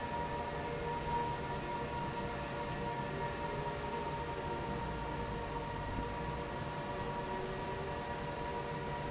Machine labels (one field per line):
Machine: fan